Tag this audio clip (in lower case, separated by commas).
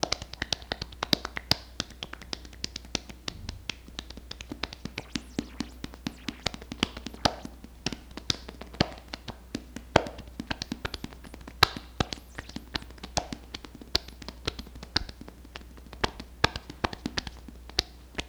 hands